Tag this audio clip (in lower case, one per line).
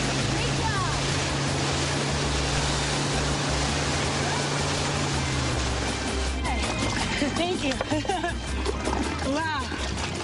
boat
outside, rural or natural
vehicle
music
speech